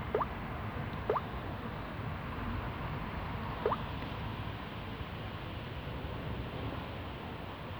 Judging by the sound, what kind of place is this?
residential area